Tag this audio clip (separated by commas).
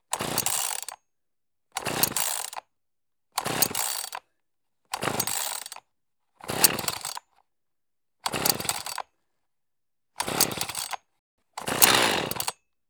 Engine, Sawing, Tools